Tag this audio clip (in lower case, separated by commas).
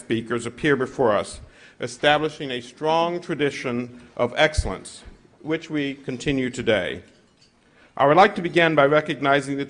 speech, monologue, male speech